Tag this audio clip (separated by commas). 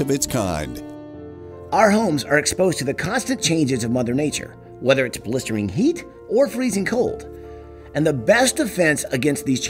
Music, Speech